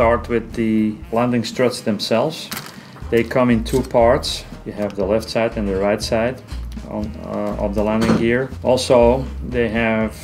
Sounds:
music, speech

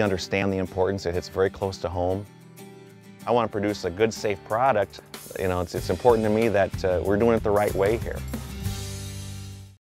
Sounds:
speech, music

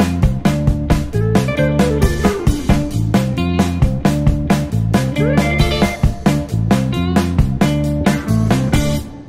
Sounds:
music

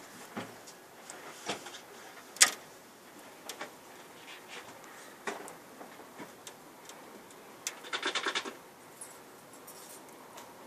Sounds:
engine

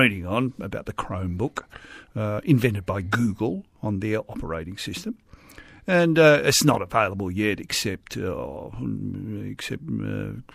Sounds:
radio, speech

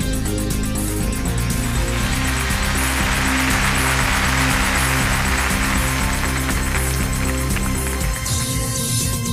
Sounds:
music

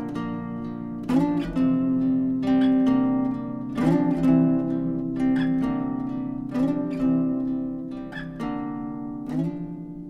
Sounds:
music, harp

